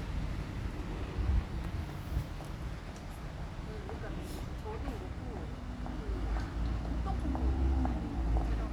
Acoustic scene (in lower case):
residential area